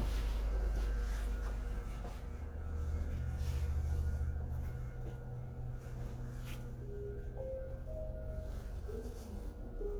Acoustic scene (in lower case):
elevator